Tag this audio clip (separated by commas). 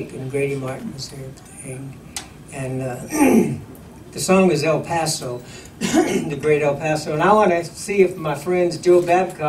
Speech